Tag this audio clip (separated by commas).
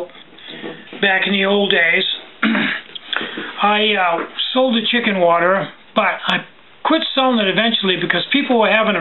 Speech